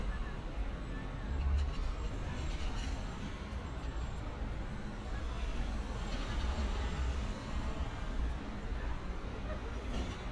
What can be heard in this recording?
engine of unclear size, person or small group talking